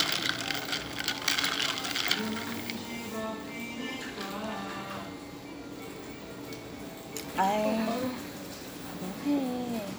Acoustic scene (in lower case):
cafe